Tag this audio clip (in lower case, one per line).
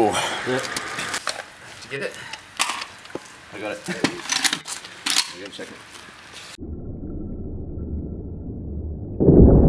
machine gun shooting